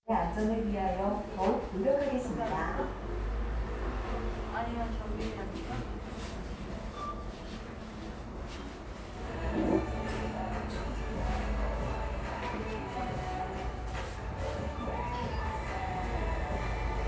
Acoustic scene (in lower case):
cafe